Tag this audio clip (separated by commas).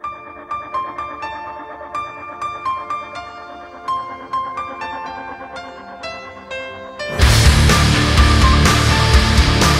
Music, outside, rural or natural